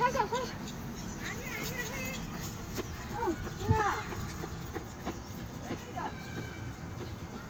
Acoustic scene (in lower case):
park